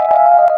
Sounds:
Keyboard (musical), Musical instrument, Music, Piano

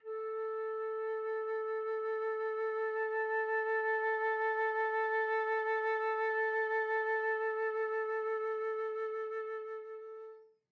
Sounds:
Musical instrument, Music, Wind instrument

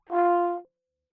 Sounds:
Musical instrument, Music, Brass instrument

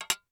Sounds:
Tap, home sounds, dishes, pots and pans

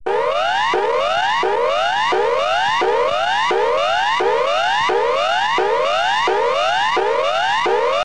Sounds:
Siren, Alarm

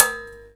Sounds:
Domestic sounds, dishes, pots and pans

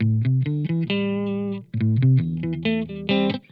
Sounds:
Musical instrument, Music, Plucked string instrument, Electric guitar, Guitar

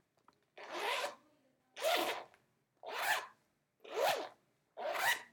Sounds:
home sounds, Zipper (clothing)

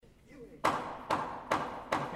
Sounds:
Hammer, Tools

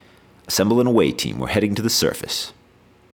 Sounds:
Human voice, Speech, Male speech

